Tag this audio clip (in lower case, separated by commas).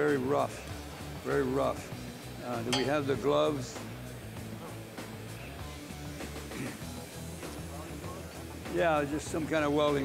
music, speech